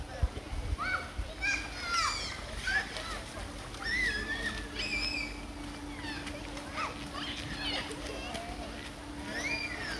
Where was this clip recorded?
in a park